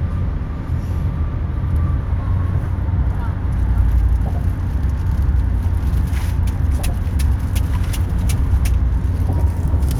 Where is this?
in a car